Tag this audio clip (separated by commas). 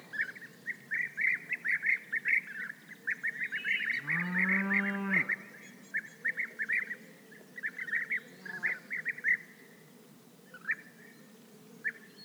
Animal, livestock